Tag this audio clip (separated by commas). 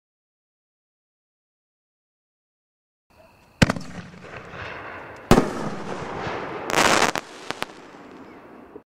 Fireworks